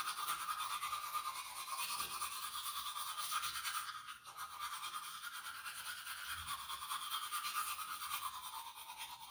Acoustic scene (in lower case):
restroom